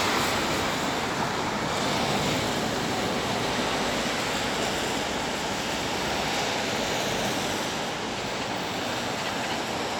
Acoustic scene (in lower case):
street